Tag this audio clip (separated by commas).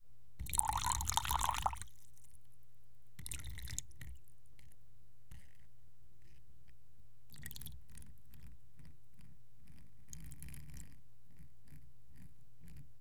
Liquid